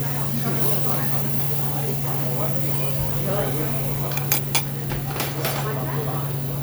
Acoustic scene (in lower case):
restaurant